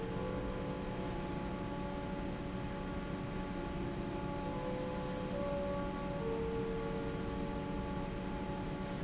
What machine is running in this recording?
fan